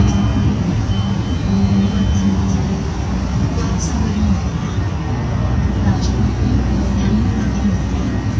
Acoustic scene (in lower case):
bus